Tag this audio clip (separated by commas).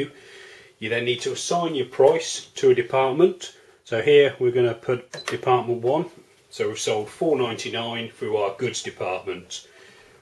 Speech